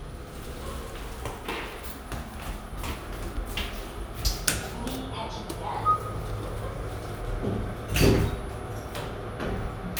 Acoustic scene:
elevator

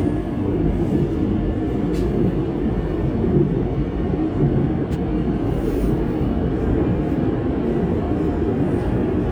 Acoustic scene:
subway train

